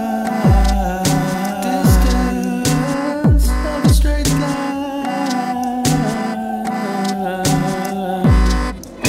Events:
0.0s-8.3s: male singing
0.0s-9.0s: music

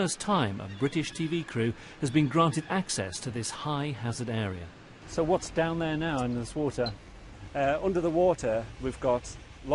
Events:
0.0s-1.7s: man speaking
0.0s-9.7s: wind
0.6s-1.4s: bird call
1.7s-2.0s: breathing
2.0s-4.8s: man speaking
2.0s-2.8s: bird call
5.0s-9.7s: conversation
5.1s-7.0s: man speaking
6.1s-6.2s: tick
6.8s-6.9s: squeal
7.5s-8.6s: man speaking
8.8s-9.4s: man speaking

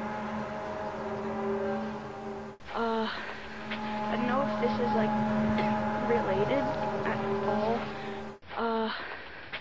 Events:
0.0s-9.6s: music
2.7s-3.2s: human voice
3.7s-3.8s: generic impact sounds
4.1s-5.1s: woman speaking
5.6s-5.8s: generic impact sounds
6.0s-6.8s: woman speaking
6.7s-6.8s: generic impact sounds
7.4s-8.0s: woman speaking
7.7s-8.4s: breathing
8.5s-9.1s: human voice
9.5s-9.6s: generic impact sounds

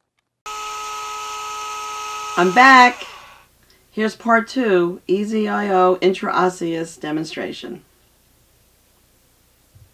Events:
0.0s-9.9s: background noise
0.1s-0.2s: clicking
0.4s-3.5s: dentist's drill
3.6s-3.8s: human sounds
5.1s-7.8s: woman speaking

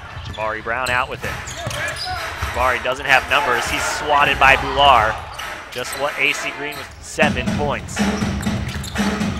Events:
0.0s-0.5s: squeal
0.0s-9.3s: background noise
0.0s-9.3s: crowd
0.2s-0.4s: basketball bounce
0.4s-1.4s: man speaking
0.8s-1.0s: squeal
0.8s-1.4s: basketball bounce
1.1s-2.8s: music
1.4s-2.3s: squeal
1.5s-2.2s: man speaking
1.7s-2.7s: basketball bounce
2.5s-5.1s: man speaking
3.0s-4.0s: music
3.5s-4.0s: basketball bounce
4.8s-5.1s: basketball bounce
5.3s-5.5s: squeal
5.3s-6.5s: music
5.3s-6.9s: man speaking
5.8s-6.2s: squeal
6.7s-6.9s: squeal
7.2s-7.8s: man speaking
7.2s-7.6s: music
7.9s-9.3s: music
7.9s-9.3s: squeal

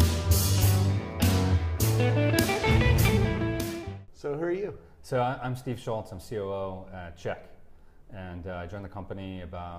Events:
0.0s-4.0s: music
4.0s-9.7s: mechanisms
4.1s-9.7s: conversation
4.1s-4.8s: male speech
4.8s-5.0s: breathing
5.0s-7.5s: male speech
7.7s-8.0s: breathing
8.1s-9.7s: male speech

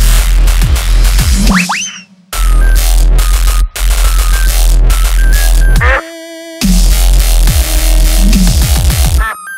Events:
0.0s-9.5s: music

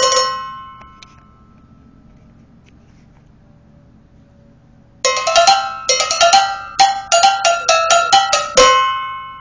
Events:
0.0s-9.4s: mechanisms
1.0s-1.1s: generic impact sounds
2.6s-3.3s: surface contact
5.0s-9.4s: music

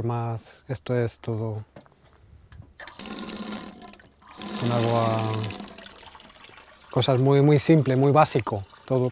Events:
2.2s-2.7s: wind noise (microphone)
2.5s-2.6s: generic impact sounds
4.2s-9.1s: faucet
8.9s-9.1s: man speaking

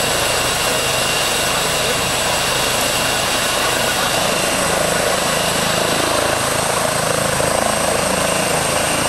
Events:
0.0s-9.0s: quadcopter
0.0s-9.0s: wind

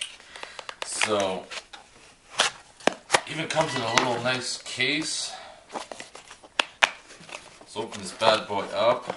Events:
0.0s-0.1s: generic impact sounds
0.0s-9.1s: background noise
0.2s-0.6s: breathing
0.3s-0.4s: tick
0.4s-0.8s: generic impact sounds
0.5s-0.7s: tick
0.8s-1.4s: man speaking
0.8s-0.9s: tick
1.0s-1.1s: generic impact sounds
1.5s-1.8s: generic impact sounds
2.3s-2.5s: generic impact sounds
2.8s-2.9s: generic impact sounds
3.1s-3.2s: generic impact sounds
3.3s-5.6s: man speaking
3.4s-3.9s: generic impact sounds
3.5s-4.0s: sound effect
3.9s-4.0s: tick
5.7s-6.4s: generic impact sounds
6.5s-6.6s: tick
6.8s-6.9s: generic impact sounds
7.1s-8.1s: generic impact sounds
7.7s-9.0s: man speaking
9.0s-9.1s: generic impact sounds

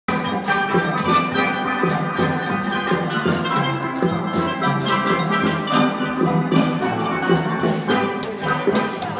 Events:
0.1s-9.1s: music
4.6s-4.7s: tick
8.2s-8.3s: tick
8.2s-9.1s: singing
8.5s-8.6s: tick
8.7s-8.9s: tick
9.0s-9.1s: tick

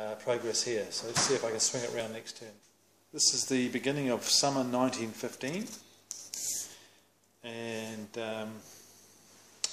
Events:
0.0s-9.7s: mechanisms
6.1s-6.8s: scrape

